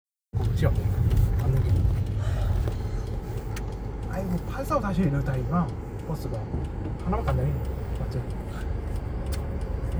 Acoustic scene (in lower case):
car